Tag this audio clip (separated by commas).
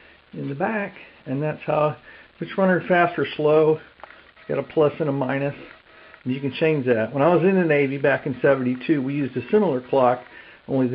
Speech